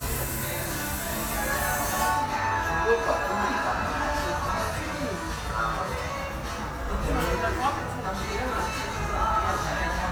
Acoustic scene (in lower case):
cafe